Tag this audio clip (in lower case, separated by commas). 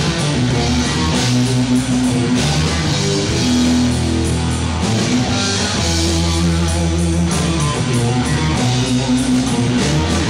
electric guitar, musical instrument, music, plucked string instrument, guitar